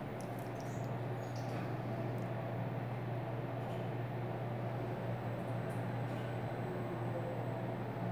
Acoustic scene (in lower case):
elevator